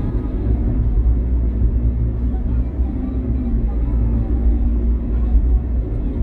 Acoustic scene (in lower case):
car